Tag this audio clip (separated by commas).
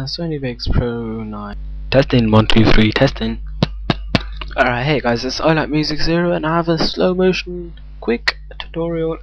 Speech